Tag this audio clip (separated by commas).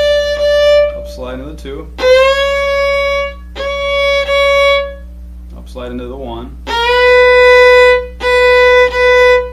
Music, Musical instrument, fiddle, Speech